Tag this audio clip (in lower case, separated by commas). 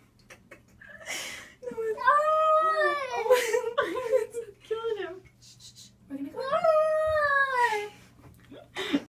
speech, animal, cat, domestic animals